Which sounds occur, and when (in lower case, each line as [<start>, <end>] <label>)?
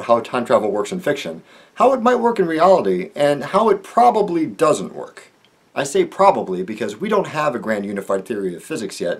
[0.00, 1.39] man speaking
[0.00, 9.15] background noise
[1.39, 1.70] breathing
[1.76, 5.30] man speaking
[5.72, 9.15] man speaking